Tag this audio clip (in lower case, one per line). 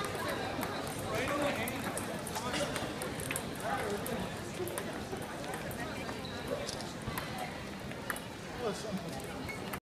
speech